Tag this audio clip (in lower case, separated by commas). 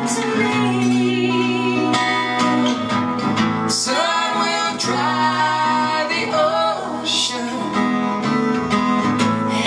jazz, music, singing, inside a large room or hall